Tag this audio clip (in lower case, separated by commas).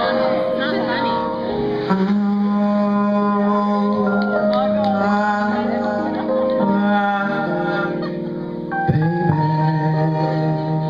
speech, music